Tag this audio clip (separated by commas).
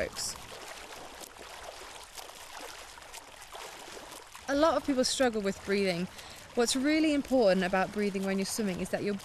Speech